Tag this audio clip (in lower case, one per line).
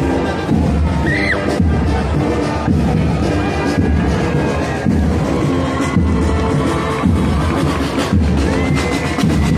people marching